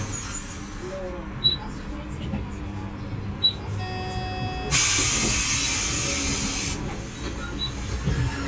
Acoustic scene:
bus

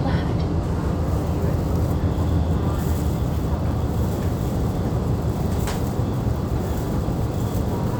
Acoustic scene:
subway train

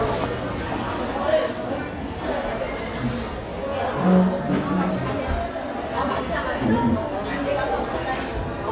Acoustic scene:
crowded indoor space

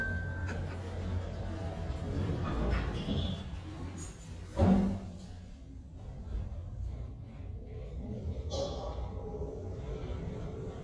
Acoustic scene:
elevator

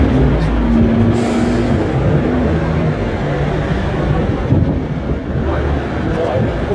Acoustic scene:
street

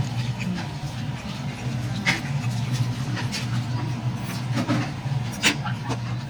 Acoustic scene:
restaurant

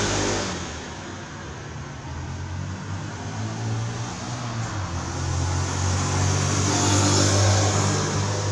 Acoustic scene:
street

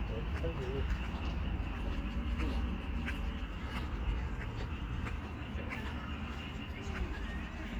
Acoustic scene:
park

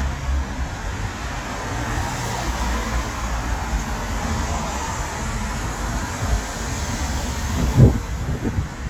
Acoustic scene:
street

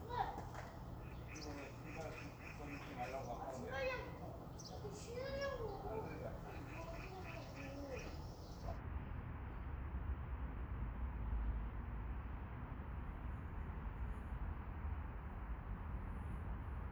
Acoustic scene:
residential area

